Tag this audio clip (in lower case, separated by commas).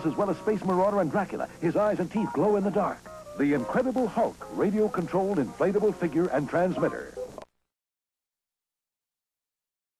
music, speech